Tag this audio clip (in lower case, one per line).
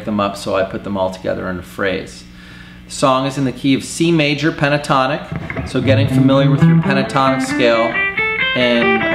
speech
tapping (guitar technique)
musical instrument
plucked string instrument
music
guitar
bass guitar